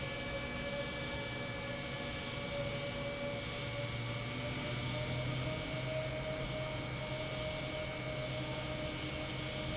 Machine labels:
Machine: pump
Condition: normal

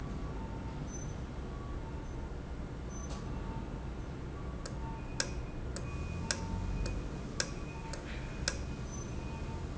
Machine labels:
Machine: valve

